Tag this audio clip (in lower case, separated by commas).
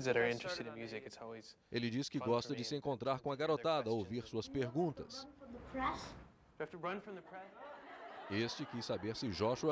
speech